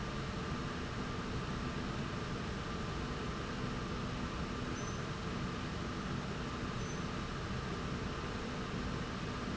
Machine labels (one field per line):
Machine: slide rail